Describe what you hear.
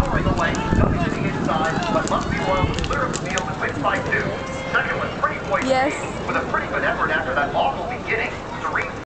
Radio playing and woman speaking with faint music and clicking noises in the background